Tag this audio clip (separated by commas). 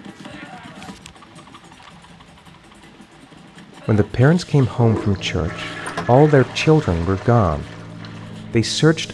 Speech, Music